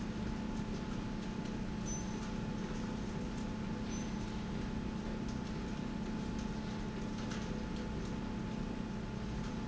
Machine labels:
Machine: slide rail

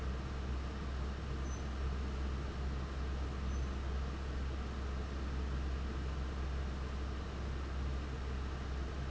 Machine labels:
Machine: fan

